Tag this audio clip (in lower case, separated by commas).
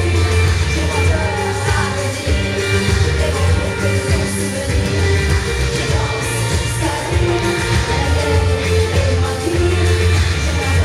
pop music, funk, music, folk music